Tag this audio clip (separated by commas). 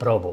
Human voice